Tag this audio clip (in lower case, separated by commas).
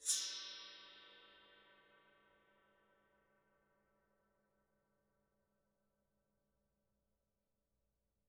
gong, music, musical instrument, percussion